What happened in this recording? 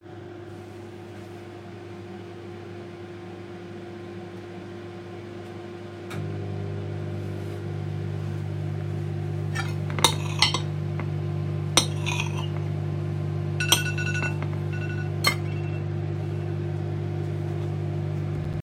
The microwave was running in the background while I started cutting food on a plate with a knife. Then a phone alarm for the microwave started ringing.